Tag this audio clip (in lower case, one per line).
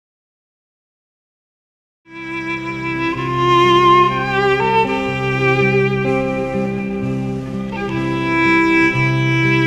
music
steel guitar